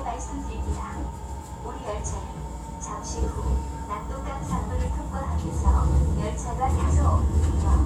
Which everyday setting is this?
subway train